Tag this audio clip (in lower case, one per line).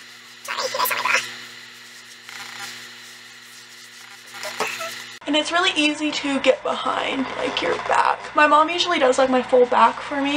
speech